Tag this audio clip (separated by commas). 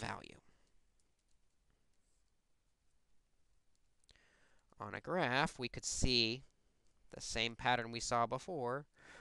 Speech